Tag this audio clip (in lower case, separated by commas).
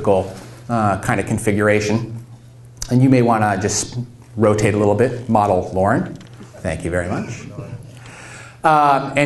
narration, man speaking, speech